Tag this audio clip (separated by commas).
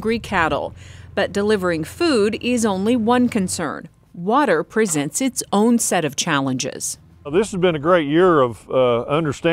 Speech